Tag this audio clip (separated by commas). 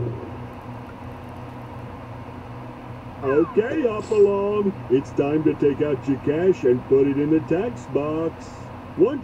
Speech